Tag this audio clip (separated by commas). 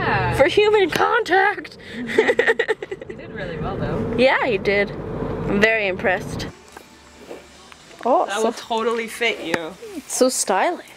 Speech